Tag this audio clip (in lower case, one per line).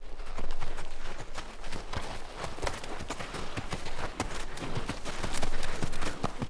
livestock
animal